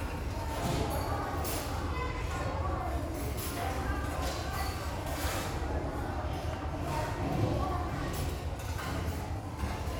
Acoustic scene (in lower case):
restaurant